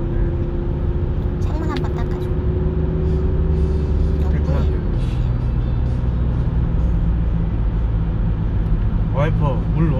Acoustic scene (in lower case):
car